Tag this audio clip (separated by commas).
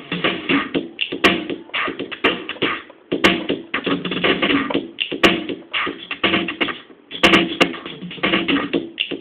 Music, Drum machine